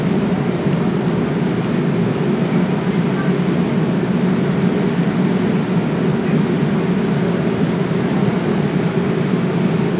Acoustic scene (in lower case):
subway station